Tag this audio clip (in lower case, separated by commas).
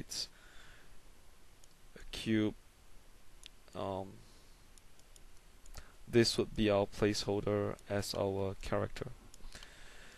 speech